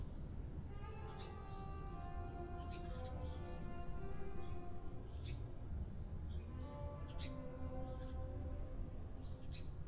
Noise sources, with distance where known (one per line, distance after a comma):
music from a fixed source